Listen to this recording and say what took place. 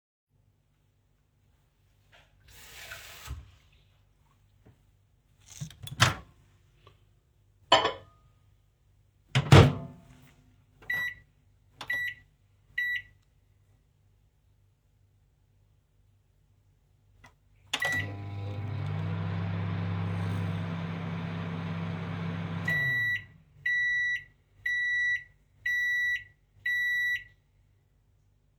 I fill a mug with water. Then put it into the microwave to warm water.